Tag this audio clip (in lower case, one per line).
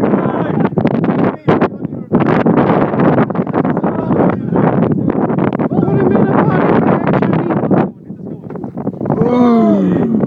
speech